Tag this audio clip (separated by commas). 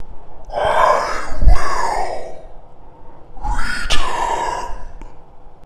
Human voice